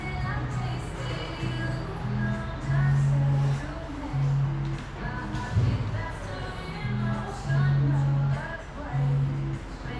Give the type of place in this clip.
cafe